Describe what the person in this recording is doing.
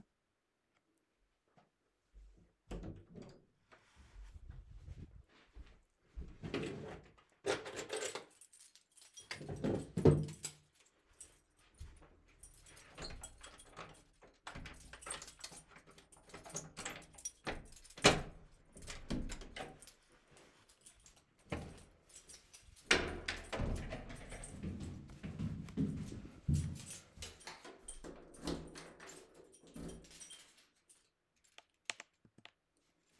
person opening drawer; looking for keys and leaving